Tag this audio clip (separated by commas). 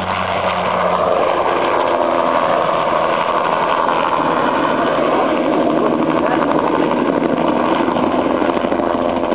Speech, outside, rural or natural, Aircraft, Helicopter, Vehicle